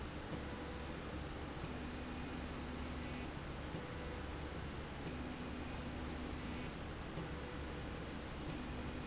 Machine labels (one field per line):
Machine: slide rail